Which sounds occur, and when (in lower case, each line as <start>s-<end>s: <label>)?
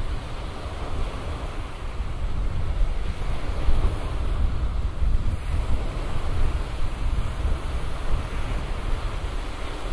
0.0s-9.9s: surf
0.0s-9.9s: wind noise (microphone)